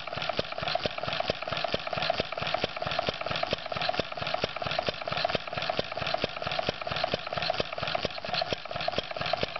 Engine is having trouble starting